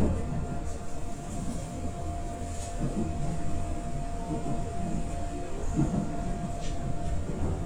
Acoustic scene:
subway train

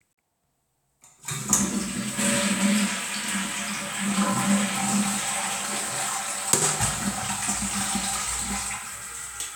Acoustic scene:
restroom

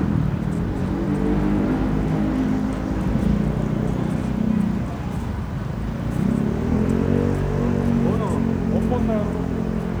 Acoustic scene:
street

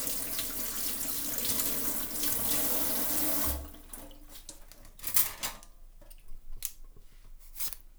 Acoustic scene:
kitchen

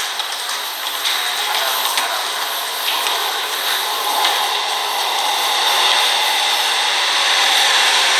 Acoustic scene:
subway station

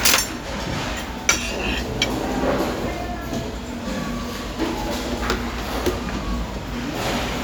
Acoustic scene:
restaurant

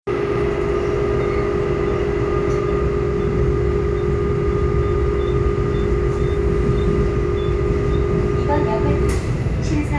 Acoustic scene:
subway train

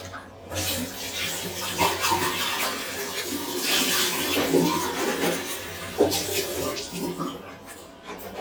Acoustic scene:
restroom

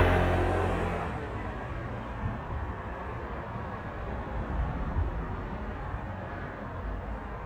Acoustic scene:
residential area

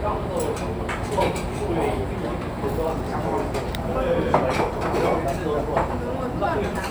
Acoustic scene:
restaurant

